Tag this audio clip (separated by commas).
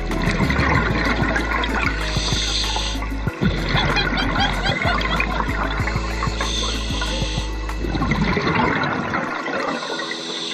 scuba diving